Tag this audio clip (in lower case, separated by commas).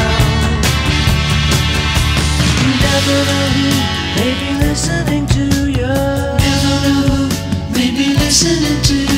singing, independent music